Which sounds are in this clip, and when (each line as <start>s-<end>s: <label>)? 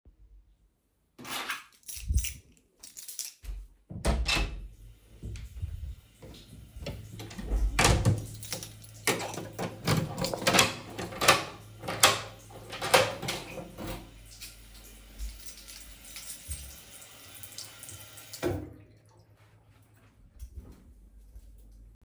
1.2s-3.7s: keys
3.9s-4.7s: door
4.7s-18.8s: running water
6.8s-8.4s: door
8.3s-8.7s: keys
9.0s-14.0s: door
15.2s-16.8s: keys
20.3s-20.7s: keys